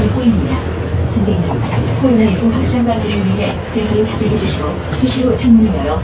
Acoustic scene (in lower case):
bus